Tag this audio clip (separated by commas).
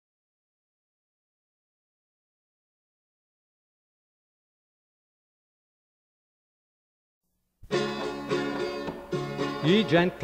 Banjo, Music